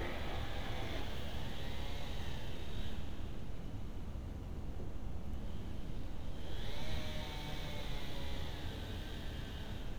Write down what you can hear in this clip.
unidentified powered saw